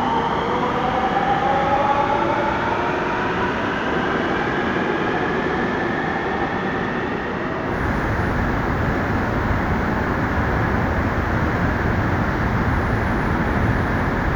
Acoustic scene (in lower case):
subway station